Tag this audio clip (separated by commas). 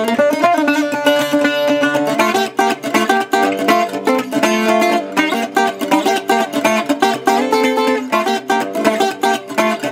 Guitar, Musical instrument, Mandolin, Acoustic guitar, Plucked string instrument, Music